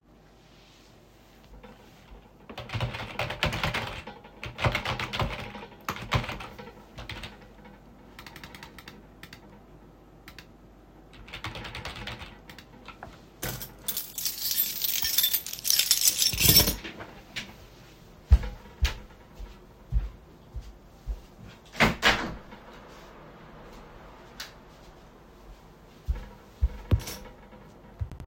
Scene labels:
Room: office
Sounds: keyboard typing, keys, footsteps, window

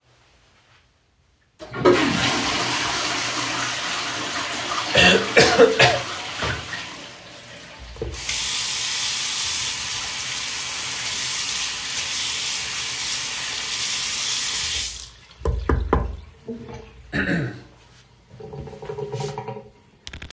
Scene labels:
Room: bathroom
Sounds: toilet flushing, running water

